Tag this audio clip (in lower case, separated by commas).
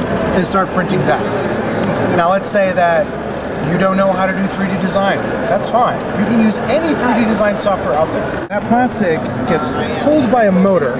speech